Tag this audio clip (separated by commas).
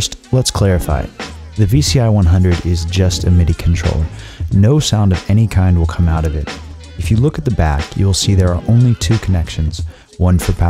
Music, Speech